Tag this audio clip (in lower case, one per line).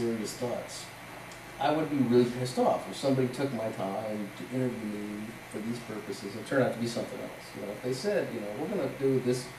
speech